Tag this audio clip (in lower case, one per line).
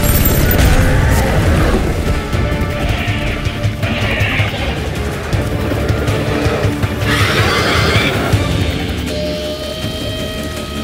dinosaurs bellowing